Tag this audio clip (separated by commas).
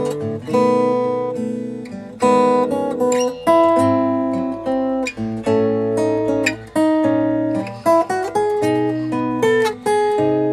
Strum, Acoustic guitar, Music, Guitar, Musical instrument